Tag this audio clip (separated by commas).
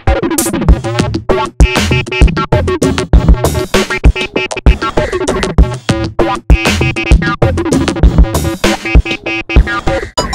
Music